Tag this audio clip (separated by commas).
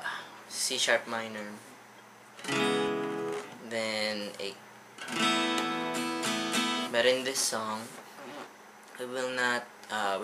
Strum, Speech, Plucked string instrument, Musical instrument, Music, Guitar